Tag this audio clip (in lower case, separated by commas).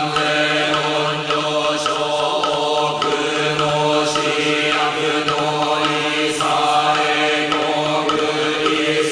music, mantra